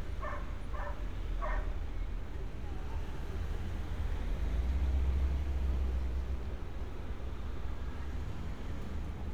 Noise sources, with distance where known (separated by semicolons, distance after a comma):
engine of unclear size; dog barking or whining, far